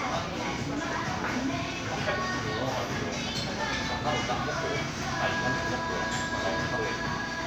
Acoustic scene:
crowded indoor space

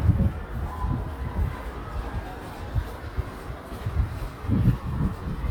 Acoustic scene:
residential area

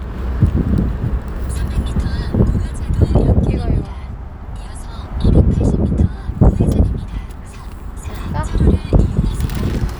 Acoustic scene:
car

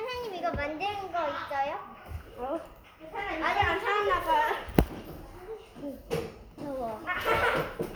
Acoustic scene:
crowded indoor space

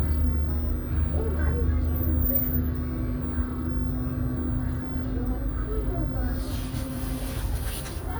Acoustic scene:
bus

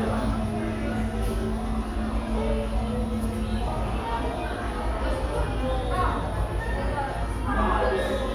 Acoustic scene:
cafe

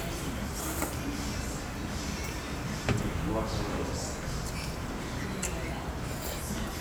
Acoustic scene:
restaurant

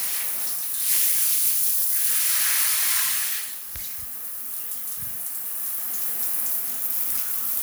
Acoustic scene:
restroom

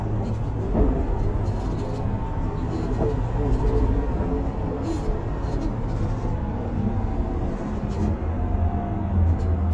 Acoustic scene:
bus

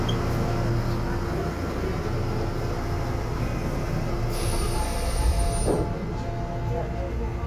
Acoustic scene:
subway train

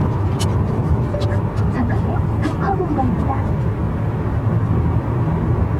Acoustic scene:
car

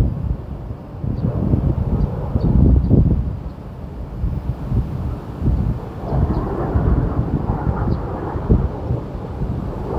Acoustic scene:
park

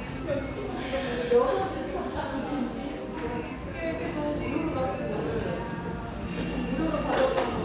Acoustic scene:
crowded indoor space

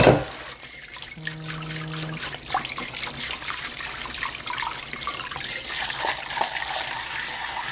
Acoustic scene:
kitchen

